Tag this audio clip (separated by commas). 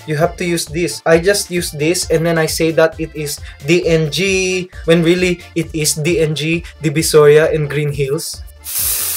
man speaking, Music, Speech